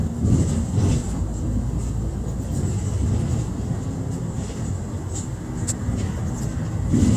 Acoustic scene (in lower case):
bus